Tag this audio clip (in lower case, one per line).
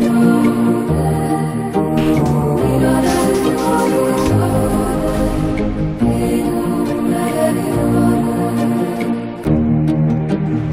music
musical instrument
guitar
plucked string instrument